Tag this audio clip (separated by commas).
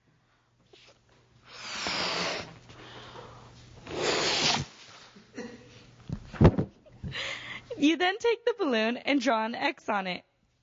Speech